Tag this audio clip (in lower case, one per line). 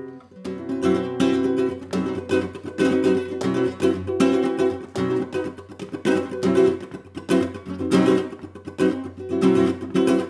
music
guitar
plucked string instrument
musical instrument